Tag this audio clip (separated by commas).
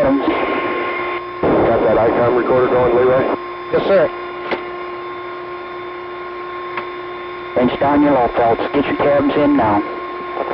Speech